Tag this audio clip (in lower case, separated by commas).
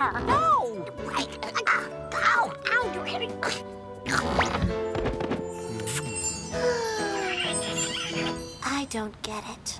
music, speech